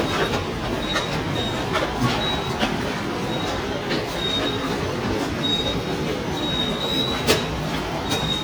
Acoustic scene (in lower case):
subway station